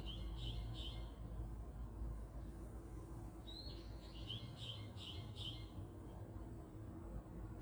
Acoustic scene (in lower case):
park